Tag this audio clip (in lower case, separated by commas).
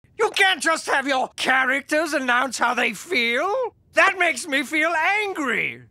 speech